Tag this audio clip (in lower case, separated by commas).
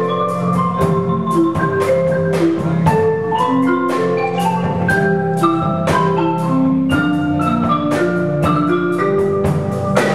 percussion, snare drum, rimshot, drum kit, drum